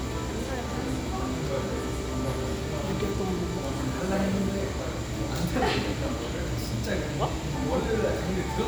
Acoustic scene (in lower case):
cafe